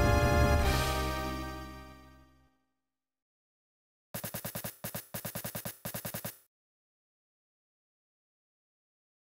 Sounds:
Music

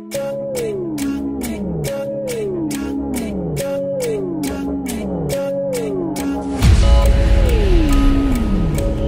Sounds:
Music

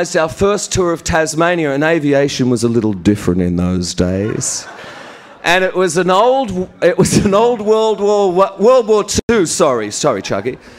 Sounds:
Speech, Narration, Male speech

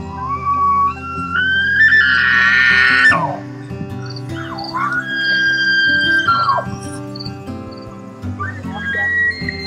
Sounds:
elk bugling

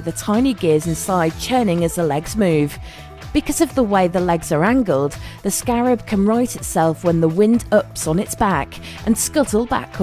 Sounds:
Speech, Music

